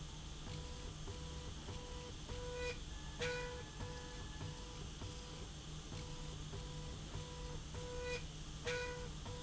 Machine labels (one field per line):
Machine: slide rail